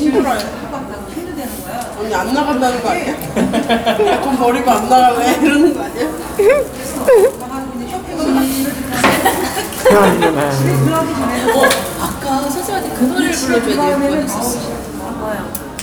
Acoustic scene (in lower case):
cafe